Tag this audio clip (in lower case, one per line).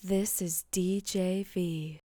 human voice
speech
woman speaking